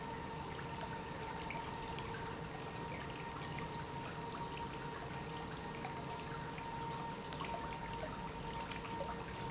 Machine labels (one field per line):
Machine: pump